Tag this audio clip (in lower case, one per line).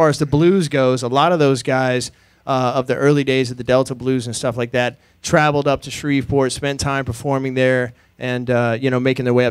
speech